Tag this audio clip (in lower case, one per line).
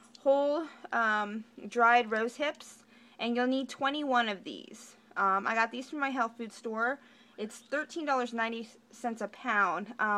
speech